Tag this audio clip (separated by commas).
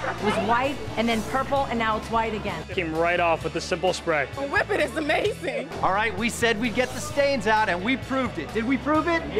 Speech, Music